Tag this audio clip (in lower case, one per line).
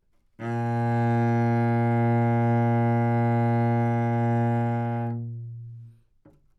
music
bowed string instrument
musical instrument